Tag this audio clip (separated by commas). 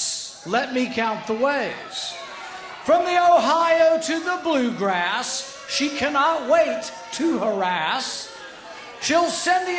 Speech, Narration, Male speech